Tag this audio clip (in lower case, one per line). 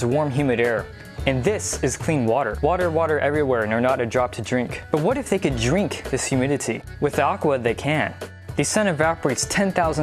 music
speech